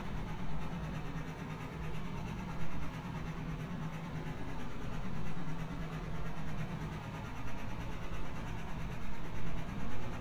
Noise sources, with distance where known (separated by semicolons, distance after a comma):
unidentified impact machinery